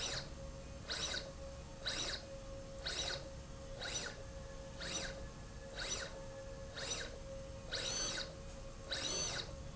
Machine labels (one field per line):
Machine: slide rail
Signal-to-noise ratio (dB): 6 dB